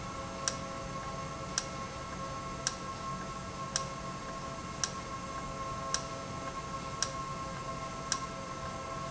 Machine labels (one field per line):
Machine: valve